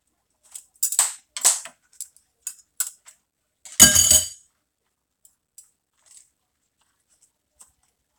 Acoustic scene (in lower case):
kitchen